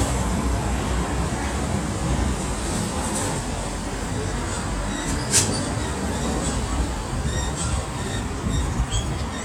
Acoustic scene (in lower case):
street